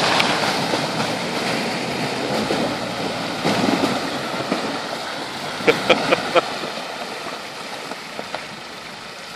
Loud splashing in a flowing stream, thunder in the distance, a man laughs